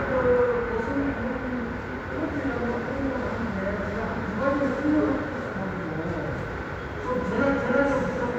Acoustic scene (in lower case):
subway station